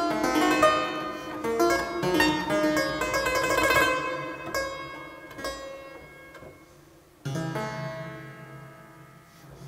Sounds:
playing harpsichord

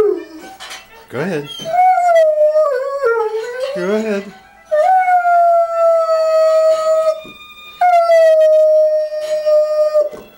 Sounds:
Domestic animals, Animal, Howl, Dog, Speech, Music

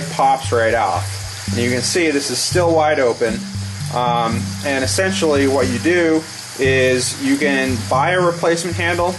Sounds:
faucet, Music, Speech

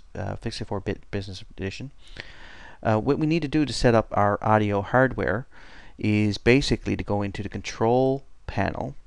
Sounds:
Speech

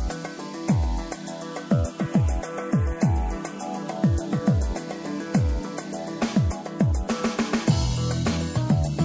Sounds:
Music

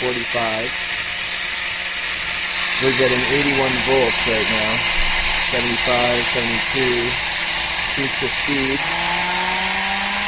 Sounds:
Speech

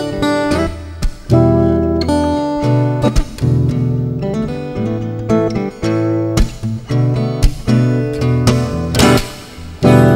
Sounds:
Music, Musical instrument, Acoustic guitar, Guitar, Plucked string instrument

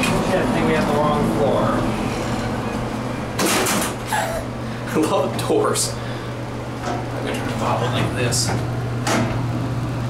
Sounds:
inside a small room, Speech

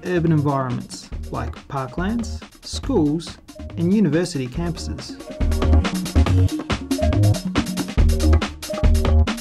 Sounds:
Music, Speech

